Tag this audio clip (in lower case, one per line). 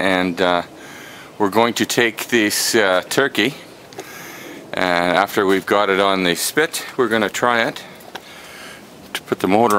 speech